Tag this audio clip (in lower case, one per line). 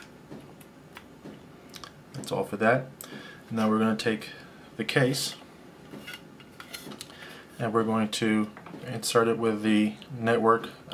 speech
inside a small room